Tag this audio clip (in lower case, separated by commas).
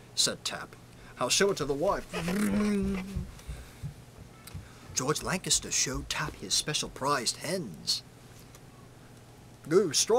male speech, speech